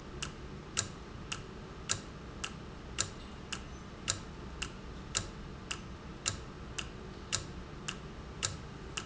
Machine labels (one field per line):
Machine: valve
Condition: normal